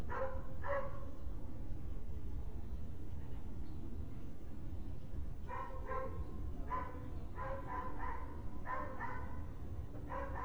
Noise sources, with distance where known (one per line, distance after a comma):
dog barking or whining, far